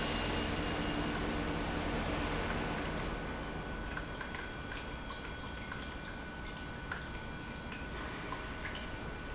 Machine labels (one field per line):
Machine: pump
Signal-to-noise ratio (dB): -6 dB